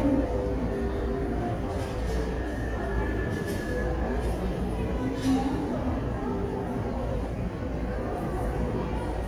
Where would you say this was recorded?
in a crowded indoor space